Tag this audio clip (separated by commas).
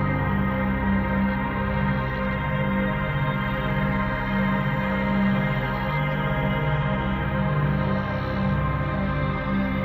Music, Ambient music